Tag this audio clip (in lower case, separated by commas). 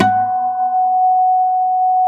plucked string instrument, music, acoustic guitar, guitar, musical instrument